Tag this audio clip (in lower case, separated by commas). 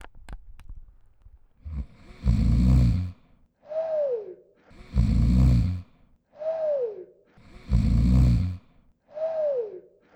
respiratory sounds, breathing